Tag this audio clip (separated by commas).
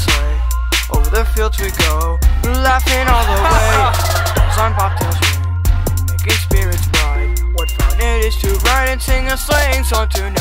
Music